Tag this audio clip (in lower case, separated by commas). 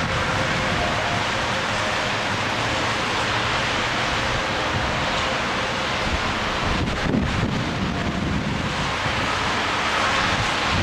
vehicle